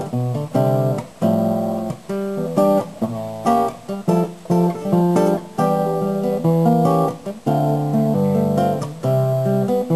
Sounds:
Musical instrument, Music, Guitar

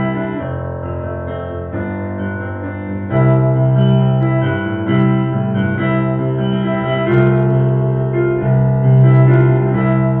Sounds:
Piano, playing piano, Keyboard (musical), Electric piano

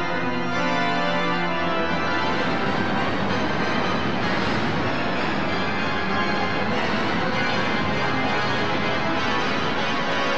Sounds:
Hammond organ, Organ

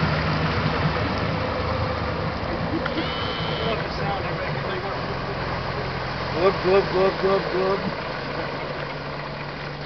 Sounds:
Speech

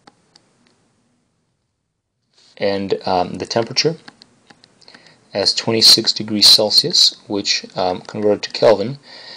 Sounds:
Clicking, Speech

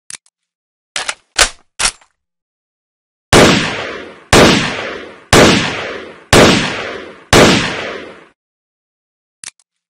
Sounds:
swoosh

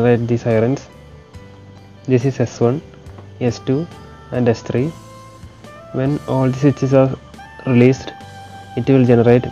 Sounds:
Music, Speech

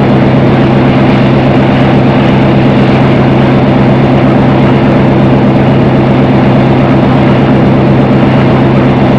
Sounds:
Train

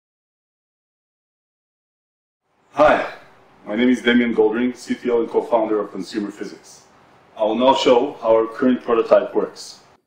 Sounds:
inside a small room, Speech

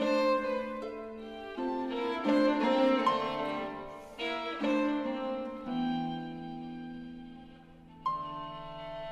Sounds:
Violin, Bowed string instrument

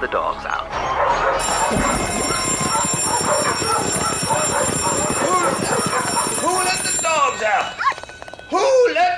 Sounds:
Animal, Dog, Domestic animals

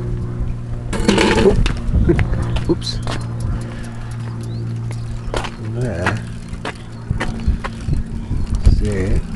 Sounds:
Speech

